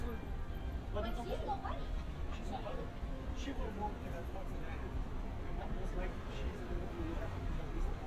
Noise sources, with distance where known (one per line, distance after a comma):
person or small group talking, near